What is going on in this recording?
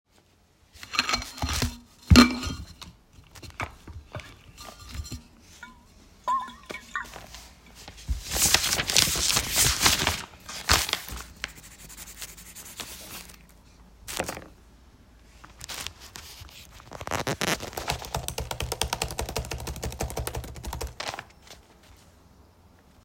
I opened the steel water bottle to drink water and then I picked up pencil in my hand to write something in note. Finally, I started to typing in the Laptop about the content.